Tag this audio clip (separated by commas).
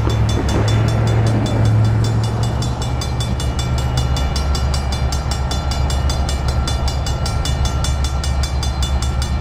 Vehicle, Train